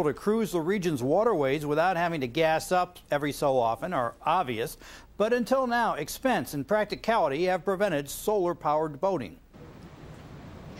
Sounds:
speech

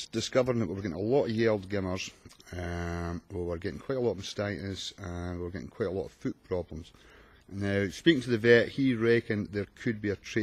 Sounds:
speech

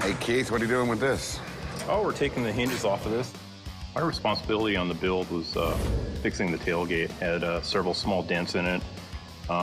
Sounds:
music
speech

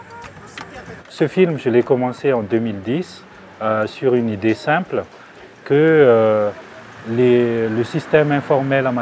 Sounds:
speech

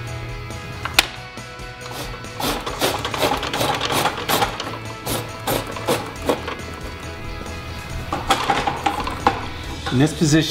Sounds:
music
speech
tools

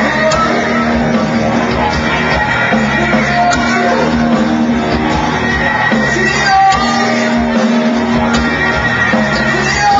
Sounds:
music
singing

